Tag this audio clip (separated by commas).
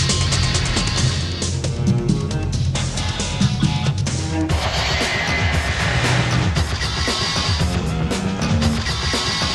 Music